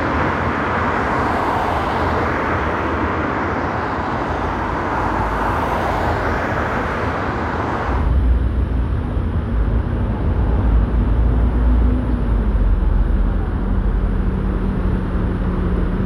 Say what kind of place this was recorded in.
street